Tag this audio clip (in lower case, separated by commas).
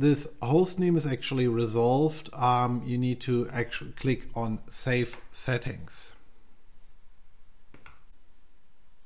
inside a small room, speech